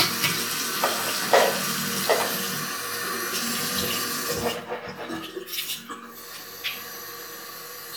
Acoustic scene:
restroom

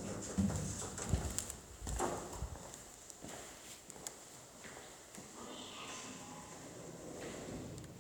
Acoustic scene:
elevator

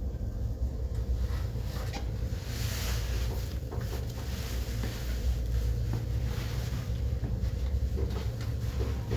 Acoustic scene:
elevator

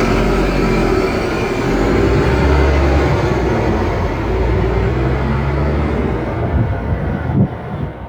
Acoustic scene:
street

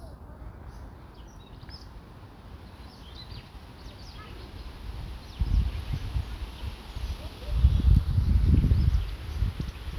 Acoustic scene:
park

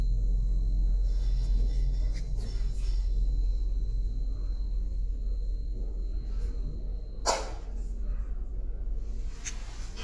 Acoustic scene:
elevator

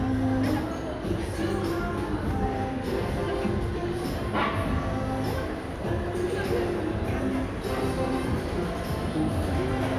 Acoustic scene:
crowded indoor space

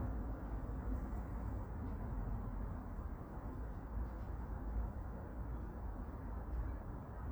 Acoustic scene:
park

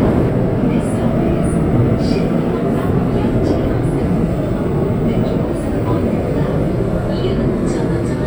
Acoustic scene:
subway train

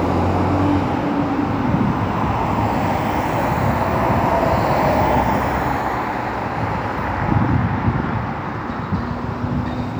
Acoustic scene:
street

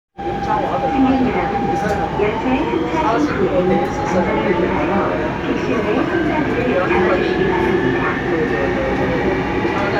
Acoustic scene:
subway train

